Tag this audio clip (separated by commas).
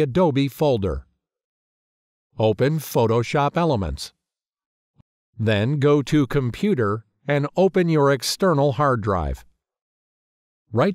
Speech